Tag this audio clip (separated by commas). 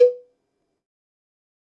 Cowbell, Bell